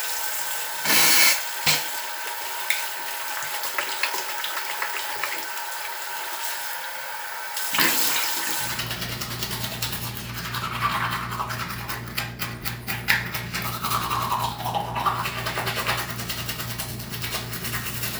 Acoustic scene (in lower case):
restroom